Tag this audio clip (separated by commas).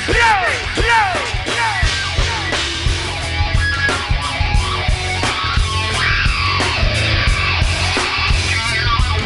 Heavy metal, inside a large room or hall, Music